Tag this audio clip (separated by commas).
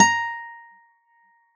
Music, Musical instrument, Acoustic guitar, Guitar, Plucked string instrument